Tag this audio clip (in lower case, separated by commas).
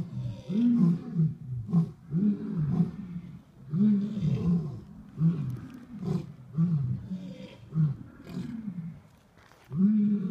lions roaring